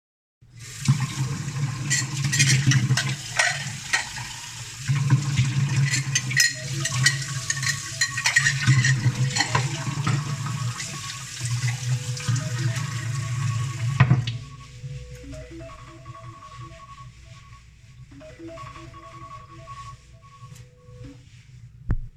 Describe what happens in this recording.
I was washing dishes, when an alarm on my phone went off. I turned off the water and stopped the alarm